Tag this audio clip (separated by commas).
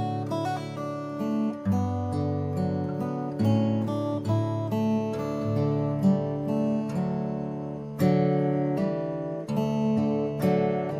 Musical instrument, Music, Strum, Guitar, Plucked string instrument